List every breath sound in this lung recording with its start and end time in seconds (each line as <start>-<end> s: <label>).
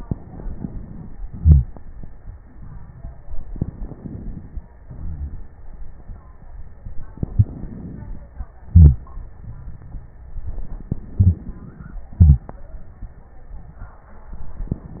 0.00-1.15 s: inhalation
1.26-1.70 s: exhalation
3.47-4.72 s: inhalation
3.47-4.72 s: crackles
4.82-5.47 s: crackles
4.83-5.44 s: exhalation
7.23-8.44 s: inhalation
8.61-9.09 s: exhalation
11.17-12.02 s: inhalation
12.12-12.49 s: exhalation